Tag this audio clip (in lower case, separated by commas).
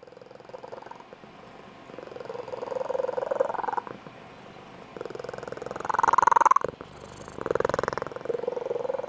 cat purring